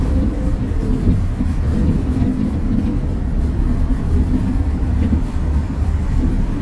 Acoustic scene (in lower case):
bus